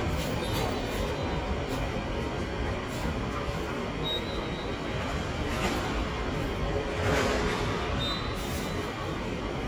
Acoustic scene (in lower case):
subway station